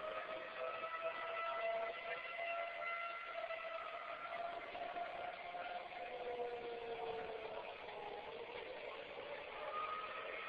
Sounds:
Civil defense siren, Siren

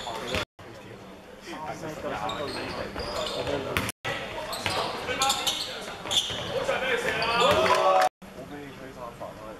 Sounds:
Basketball bounce, Speech

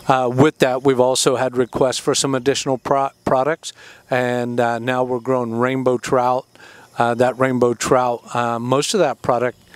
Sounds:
Speech

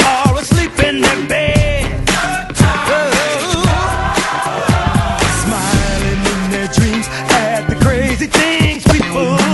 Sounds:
Music

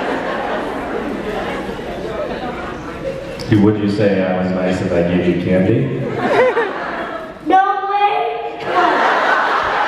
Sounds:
man speaking, Speech

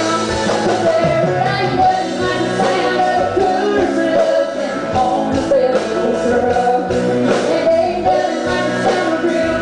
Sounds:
Music

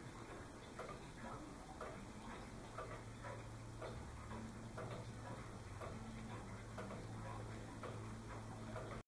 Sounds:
Tick-tock

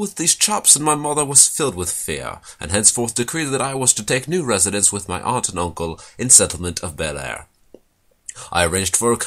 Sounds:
Speech

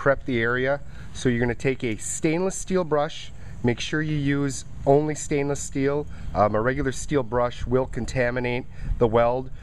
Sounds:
Speech

